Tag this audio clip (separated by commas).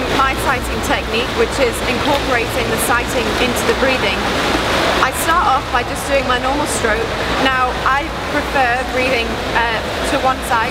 Speech